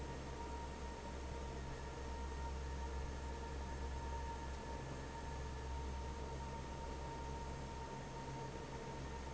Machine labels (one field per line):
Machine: fan